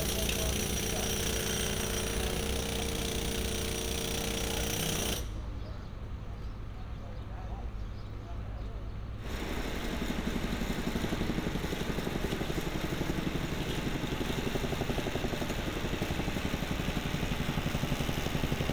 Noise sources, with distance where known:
jackhammer

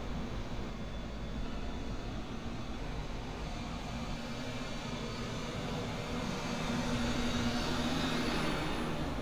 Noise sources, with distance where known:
engine of unclear size, far

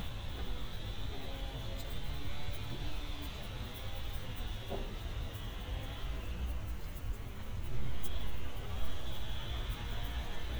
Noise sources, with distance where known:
chainsaw, far

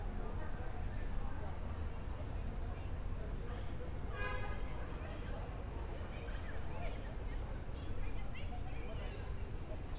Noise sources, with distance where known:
car horn, far; person or small group shouting, far

